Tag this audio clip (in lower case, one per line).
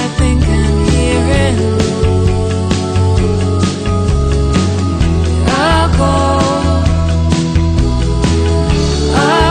music